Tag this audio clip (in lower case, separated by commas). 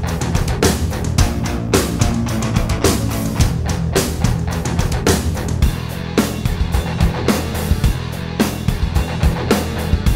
music